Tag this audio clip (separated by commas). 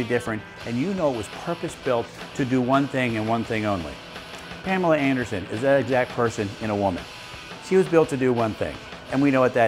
Music, Speech